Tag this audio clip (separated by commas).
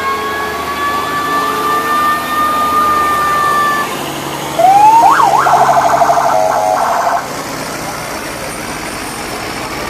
Vehicle, truck horn, outside, urban or man-made